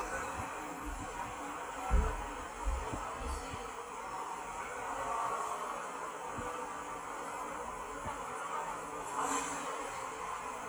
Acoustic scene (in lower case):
subway station